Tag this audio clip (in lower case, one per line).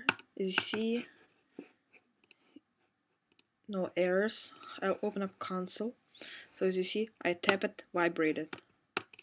speech